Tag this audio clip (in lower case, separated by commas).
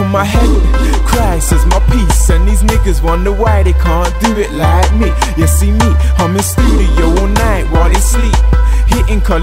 music